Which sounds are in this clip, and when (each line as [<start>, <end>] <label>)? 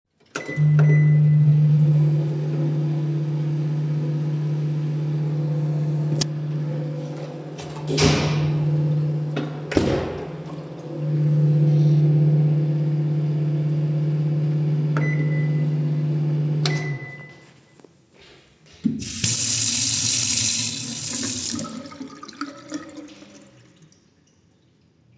[0.21, 18.32] microwave
[7.20, 10.82] window
[9.78, 10.65] running water
[18.79, 24.89] running water